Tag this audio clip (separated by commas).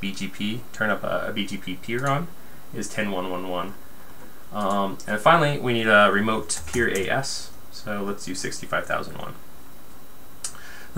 Speech, Computer keyboard, Typing